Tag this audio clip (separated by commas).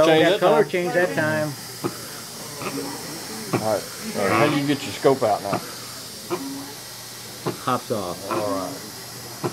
Speech